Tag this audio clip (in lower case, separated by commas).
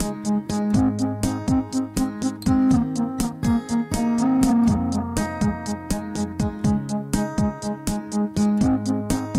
music